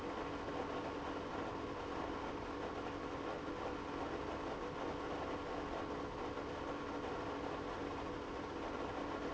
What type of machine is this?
pump